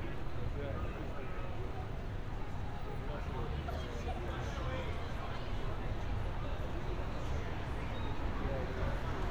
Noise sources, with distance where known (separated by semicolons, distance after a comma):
engine of unclear size; person or small group talking, near